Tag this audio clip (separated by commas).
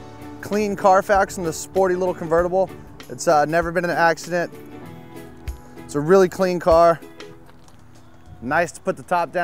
Speech, Music